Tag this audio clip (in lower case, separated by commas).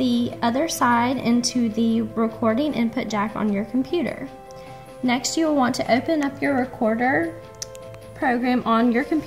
speech, music